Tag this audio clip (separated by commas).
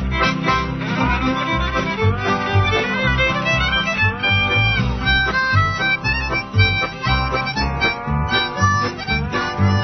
Wind instrument, Harmonica